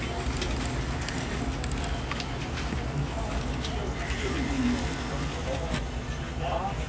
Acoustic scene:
crowded indoor space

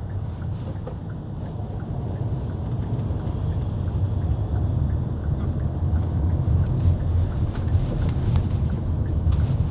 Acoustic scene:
car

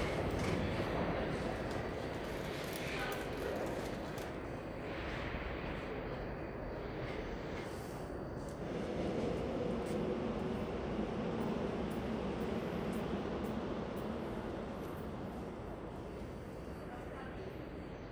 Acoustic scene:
subway station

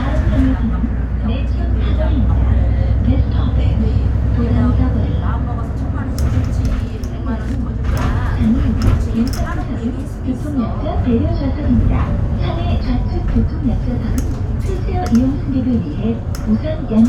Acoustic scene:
bus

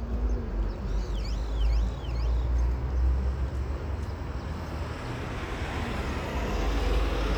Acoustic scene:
street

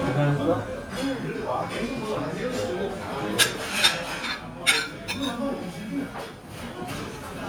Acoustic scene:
restaurant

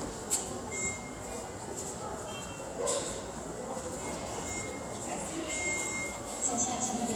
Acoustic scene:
subway station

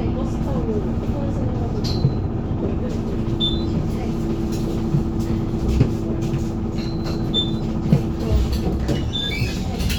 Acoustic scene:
bus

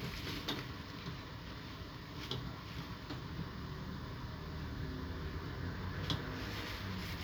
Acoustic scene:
street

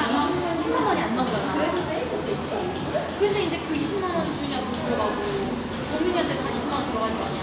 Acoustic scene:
cafe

